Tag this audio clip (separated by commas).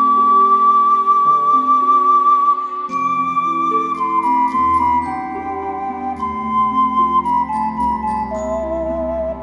Music